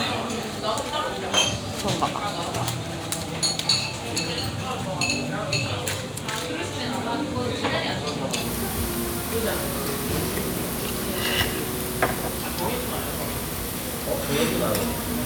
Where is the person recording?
in a restaurant